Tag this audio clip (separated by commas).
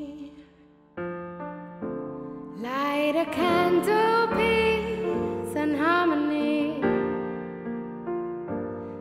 Piano, Keyboard (musical)